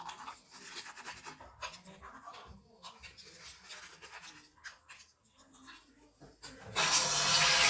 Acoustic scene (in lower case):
restroom